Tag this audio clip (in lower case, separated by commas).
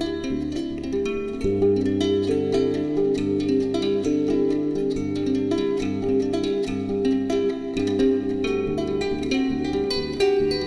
music, zither